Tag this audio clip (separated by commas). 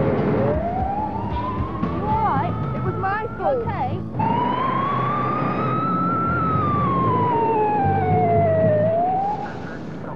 Siren, Police car (siren), Emergency vehicle